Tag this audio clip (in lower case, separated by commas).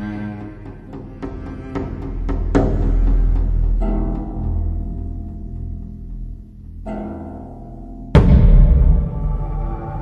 music